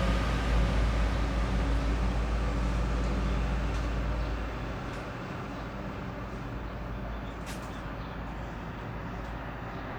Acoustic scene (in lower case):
street